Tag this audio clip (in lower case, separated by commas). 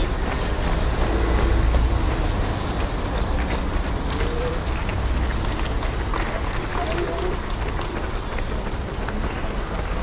people running, speech, outside, urban or man-made, run